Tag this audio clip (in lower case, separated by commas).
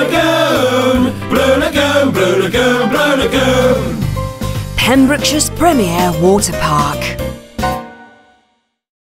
speech, music